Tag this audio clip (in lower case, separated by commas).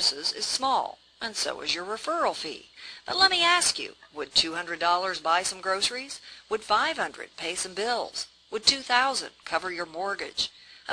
narration, speech